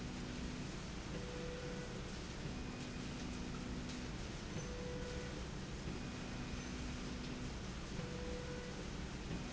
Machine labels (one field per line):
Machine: slide rail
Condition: normal